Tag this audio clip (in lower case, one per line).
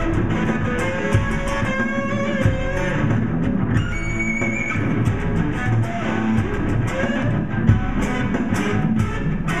distortion
musical instrument
music
guitar
rock and roll
blues